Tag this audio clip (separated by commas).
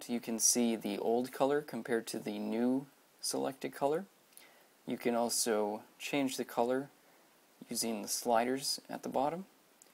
Speech